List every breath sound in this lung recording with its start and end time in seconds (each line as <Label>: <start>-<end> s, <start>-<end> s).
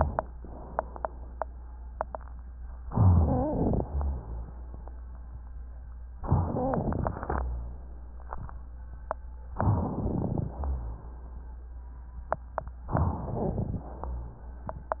Inhalation: 2.87-3.83 s, 6.21-7.42 s, 9.56-10.53 s, 12.96-13.89 s
Rhonchi: 2.87-3.83 s, 6.21-7.42 s, 10.51-11.25 s, 13.76-14.50 s